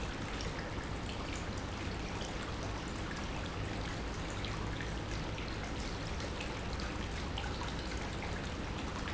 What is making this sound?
pump